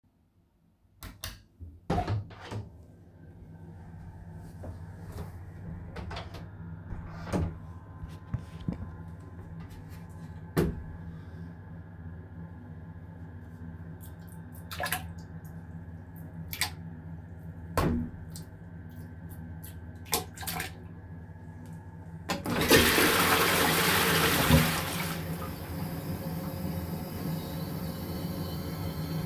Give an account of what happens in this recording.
I flipped the light switch opened the door to my bathroom, closed the door, then I opened the toilet lid and started pouring the expired yoghurt into the toilet. After that I flushed it and went out of the bathroom.